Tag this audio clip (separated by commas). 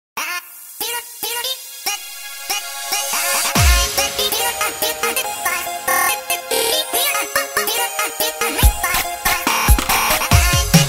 Music